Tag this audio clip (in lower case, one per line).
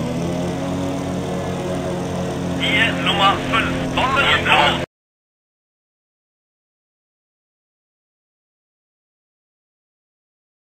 vehicle
speech